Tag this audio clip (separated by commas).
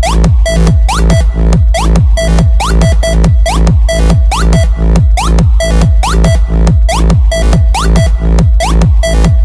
House music, Music